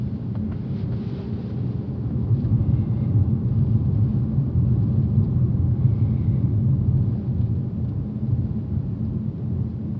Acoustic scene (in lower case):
car